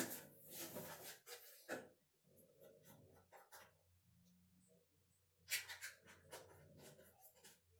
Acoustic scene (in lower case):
restroom